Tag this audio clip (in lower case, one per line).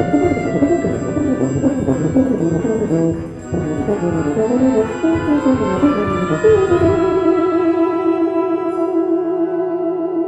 music
orchestra
brass instrument
trombone
musical instrument